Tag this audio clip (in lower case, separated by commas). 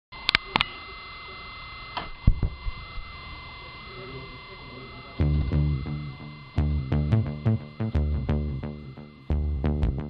music, musical instrument, synthesizer